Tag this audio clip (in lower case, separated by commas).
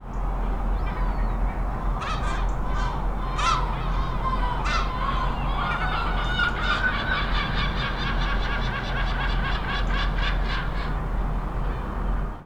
bird, wild animals, animal, gull